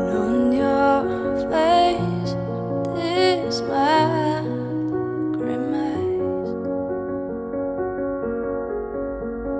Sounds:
music

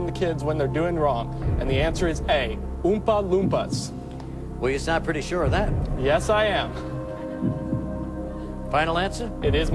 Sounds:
speech
music

